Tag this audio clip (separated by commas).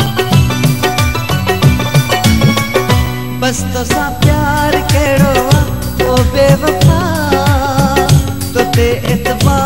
Music